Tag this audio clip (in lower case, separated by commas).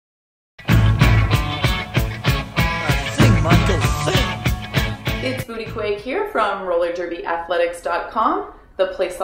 music, grunge, speech